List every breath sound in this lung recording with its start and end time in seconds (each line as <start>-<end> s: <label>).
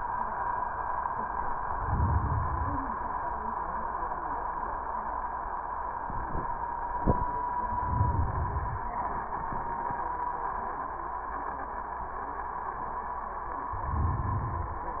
1.50-3.00 s: inhalation
7.55-9.01 s: inhalation
13.71-15.00 s: inhalation